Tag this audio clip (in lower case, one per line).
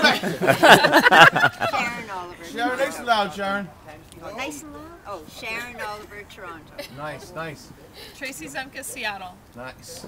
speech